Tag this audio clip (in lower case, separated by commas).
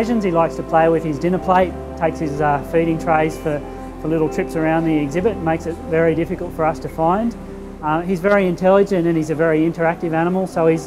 music, speech